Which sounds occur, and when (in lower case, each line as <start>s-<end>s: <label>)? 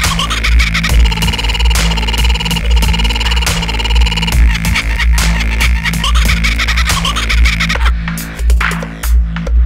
0.0s-0.9s: animal
0.0s-9.6s: music
4.3s-7.9s: animal